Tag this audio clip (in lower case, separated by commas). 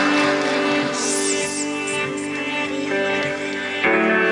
music